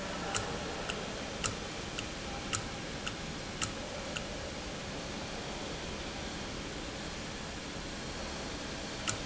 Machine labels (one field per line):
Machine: valve